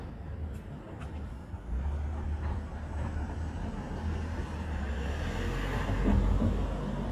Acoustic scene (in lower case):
residential area